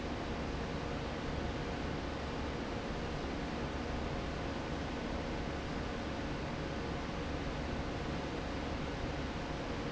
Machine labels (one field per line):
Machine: fan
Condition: abnormal